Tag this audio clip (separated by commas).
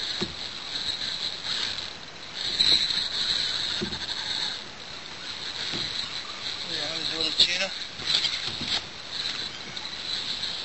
Water vehicle, Speech, Vehicle, canoe